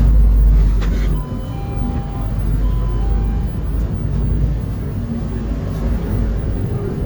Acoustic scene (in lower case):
bus